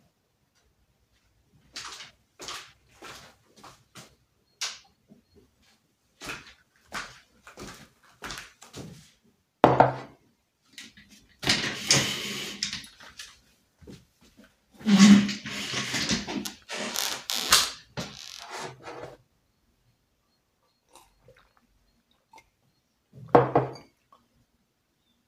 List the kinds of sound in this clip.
footsteps, light switch, cutlery and dishes